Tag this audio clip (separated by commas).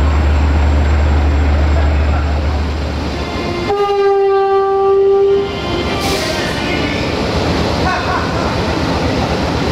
Train horn, Rail transport, Railroad car, Train